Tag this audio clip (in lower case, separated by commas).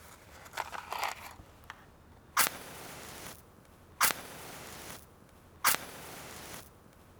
fire